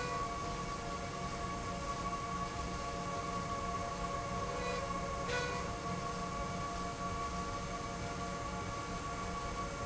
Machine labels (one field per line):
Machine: slide rail